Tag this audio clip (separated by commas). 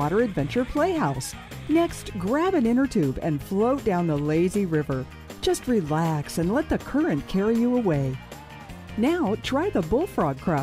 Music, Speech